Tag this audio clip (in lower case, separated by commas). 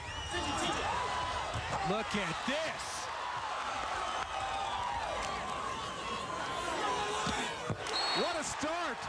basketball bounce, speech